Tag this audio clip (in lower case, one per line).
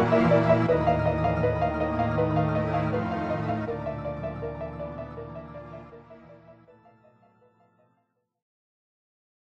music
background music